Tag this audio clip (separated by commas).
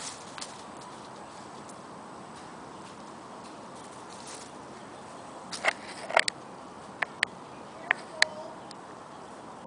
Speech